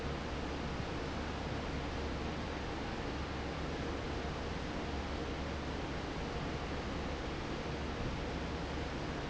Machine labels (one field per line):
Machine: fan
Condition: normal